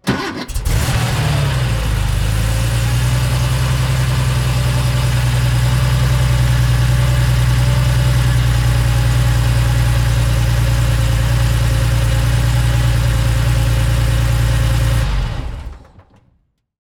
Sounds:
engine

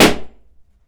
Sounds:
explosion

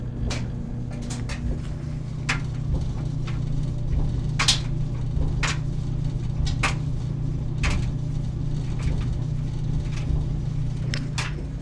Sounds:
engine

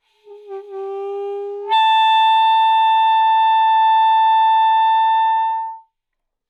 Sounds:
wind instrument
music
musical instrument

